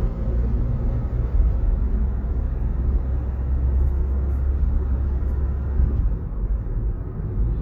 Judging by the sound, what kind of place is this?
car